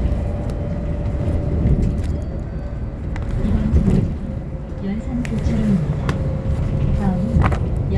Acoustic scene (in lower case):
bus